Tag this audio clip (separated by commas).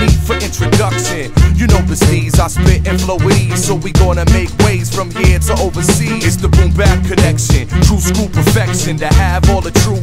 Music